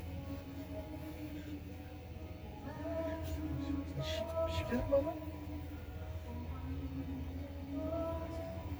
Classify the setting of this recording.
car